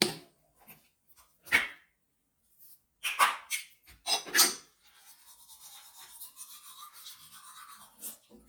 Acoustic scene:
restroom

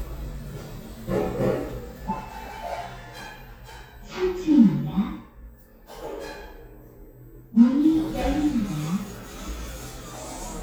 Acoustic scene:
elevator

